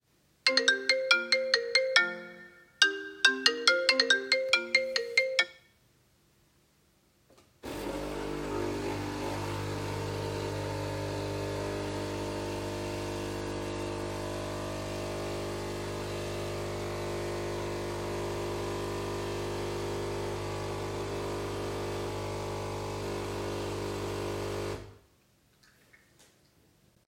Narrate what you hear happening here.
My phone was ringing when I decided to make coffee with the coffee machine. As soon as I turned off my phone I started the coffee machine.